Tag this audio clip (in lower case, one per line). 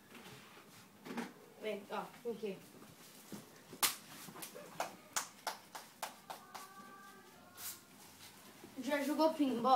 speech